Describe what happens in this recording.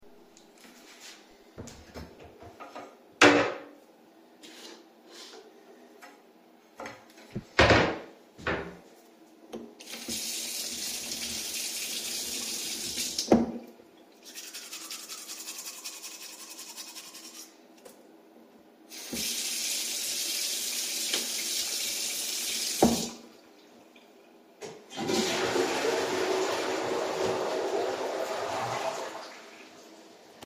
I open the drawer and take out a toothbrush. I run tap water and brush my teeth. I run the tap water again, then flush the toilet.